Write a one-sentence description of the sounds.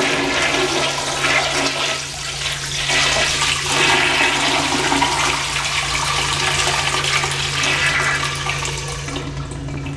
Toilet flushing and running water